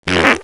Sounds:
fart

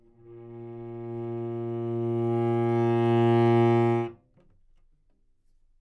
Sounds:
bowed string instrument, music, musical instrument

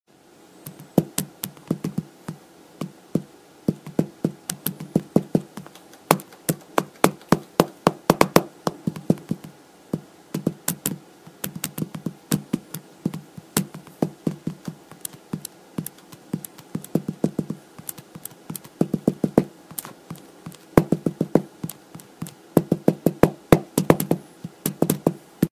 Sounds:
domestic sounds, typing

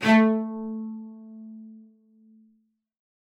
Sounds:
musical instrument, music, bowed string instrument

